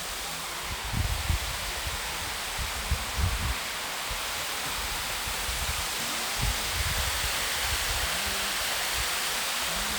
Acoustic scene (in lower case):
park